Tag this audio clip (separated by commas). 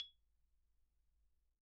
Musical instrument, Percussion, Marimba, Music, Mallet percussion